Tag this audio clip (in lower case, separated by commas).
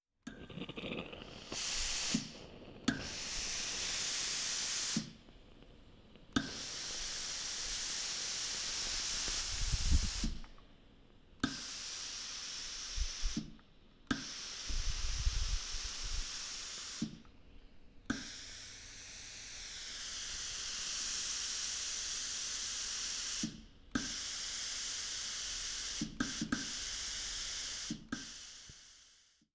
hiss